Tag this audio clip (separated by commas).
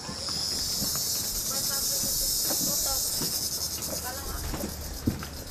Insect, Wild animals, Animal